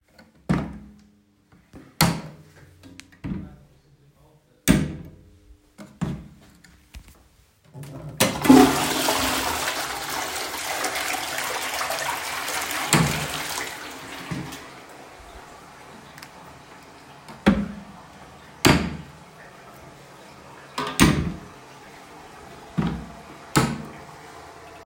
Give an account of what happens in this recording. I opened and closed the bathroom drawers while flushing the toilet. Both sounds overlap slightly but are distinguishable.